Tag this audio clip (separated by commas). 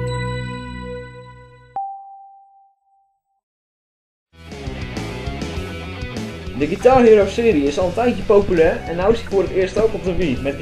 Electric guitar, Guitar, Music, Speech, Musical instrument, Plucked string instrument